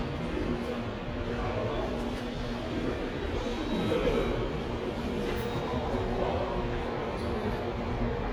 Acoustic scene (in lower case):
subway station